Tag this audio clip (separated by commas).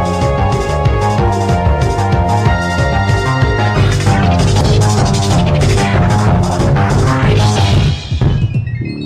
Music, Video game music